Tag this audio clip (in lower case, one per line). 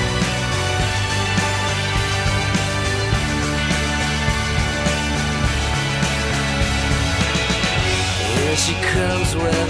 music